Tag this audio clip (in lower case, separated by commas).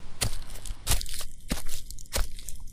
footsteps